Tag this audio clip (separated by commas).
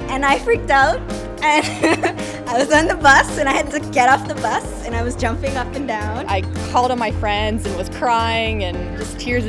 Speech, Music